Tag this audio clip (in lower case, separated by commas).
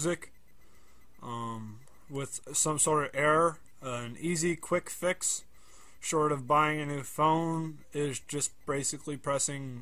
speech